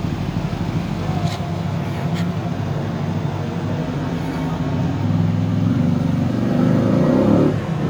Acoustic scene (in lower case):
street